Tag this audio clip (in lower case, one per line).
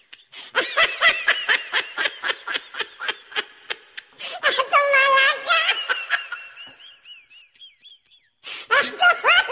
people belly laughing